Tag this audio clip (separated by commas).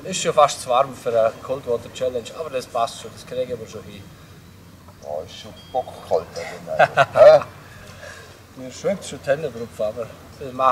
Speech